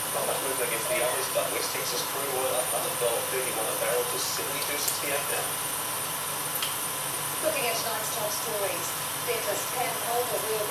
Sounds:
Speech

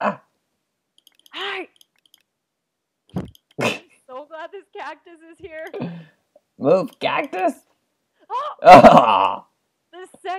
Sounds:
Speech, Clicking

